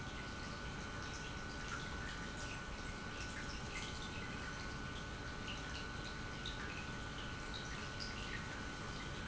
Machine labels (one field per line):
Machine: pump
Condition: normal